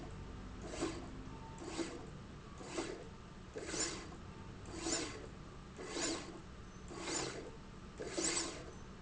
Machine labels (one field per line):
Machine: slide rail